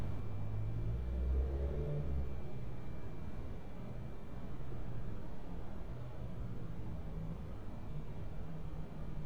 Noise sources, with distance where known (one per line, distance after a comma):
medium-sounding engine, far